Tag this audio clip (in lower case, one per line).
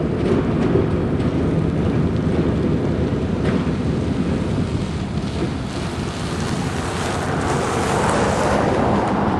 train
rail transport
railroad car
vehicle